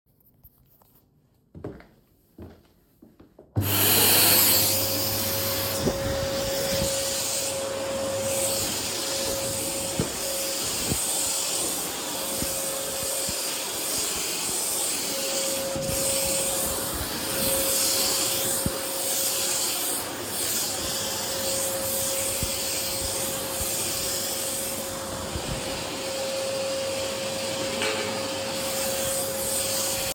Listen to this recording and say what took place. I took a few steps and turned on the vacuum cleaner to clean the floor. While walking with the vacuum, I accidentally dropped a tin can on the floor.